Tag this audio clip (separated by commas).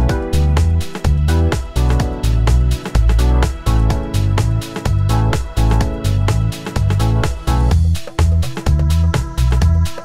Music